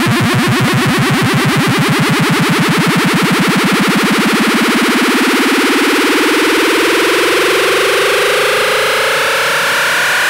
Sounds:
Music, Electronic music

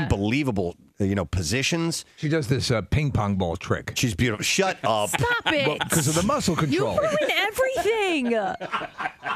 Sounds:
Speech

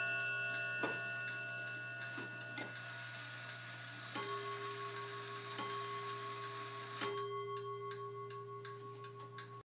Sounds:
Clock

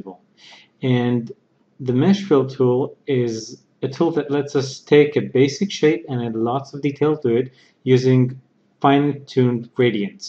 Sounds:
Speech

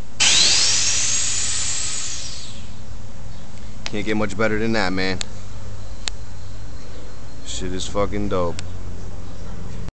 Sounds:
Speech, Vehicle

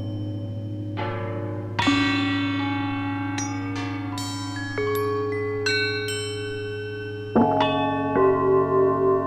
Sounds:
Tubular bells

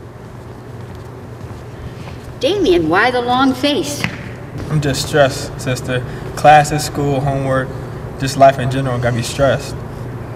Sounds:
Speech

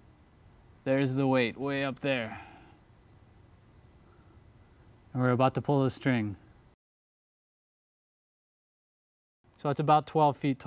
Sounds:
Speech

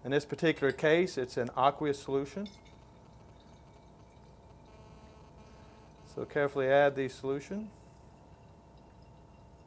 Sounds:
Speech

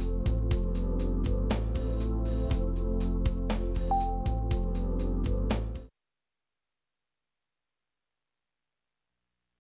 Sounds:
Music

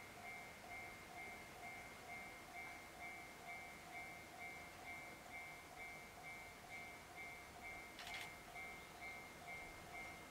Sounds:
Vehicle, Train, outside, urban or man-made

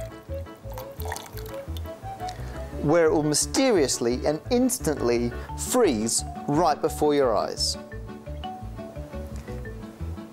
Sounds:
Speech, Stream, Music

